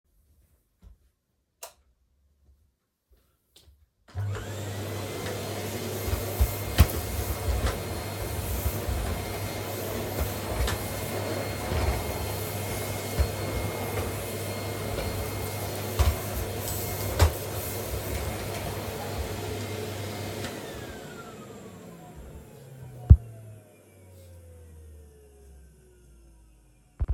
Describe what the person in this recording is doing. flipping of the light switch, then cleaning with the vacuum